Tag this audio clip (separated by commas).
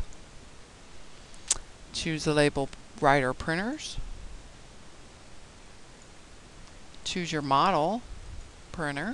Speech